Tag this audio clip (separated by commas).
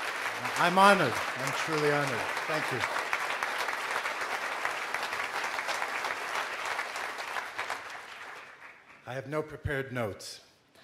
Speech, Male speech